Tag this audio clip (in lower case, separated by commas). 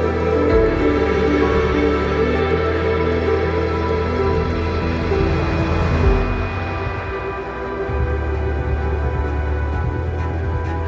music, inside a large room or hall